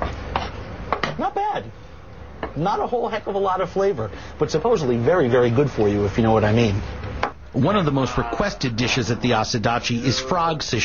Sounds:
speech

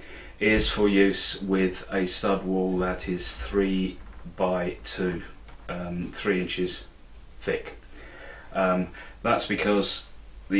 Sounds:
speech

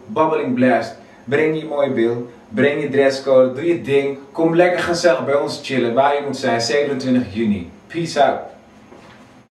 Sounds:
speech

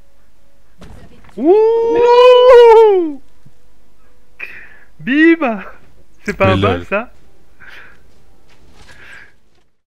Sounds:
speech

